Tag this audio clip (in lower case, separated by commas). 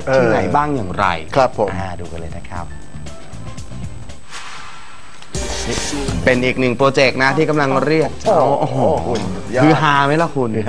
music, speech